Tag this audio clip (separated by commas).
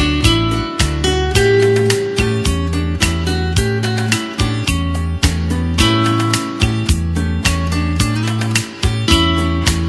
Music, Acoustic guitar, Musical instrument, Guitar, Plucked string instrument